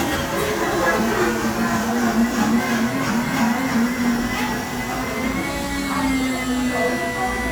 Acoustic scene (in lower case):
cafe